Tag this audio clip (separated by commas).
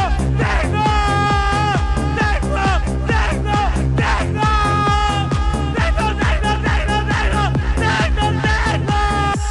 Music, Electronic music, Techno